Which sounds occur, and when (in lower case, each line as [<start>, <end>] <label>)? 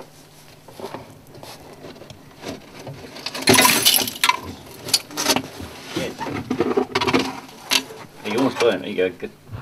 [0.01, 9.61] noise
[0.72, 4.38] generic impact sounds
[4.76, 5.41] generic impact sounds
[6.17, 7.34] generic impact sounds
[7.57, 7.95] generic impact sounds
[8.16, 9.34] man speaking
[9.47, 9.61] man speaking